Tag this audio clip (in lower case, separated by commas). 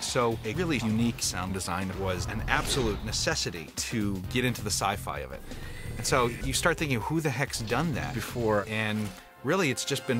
sound effect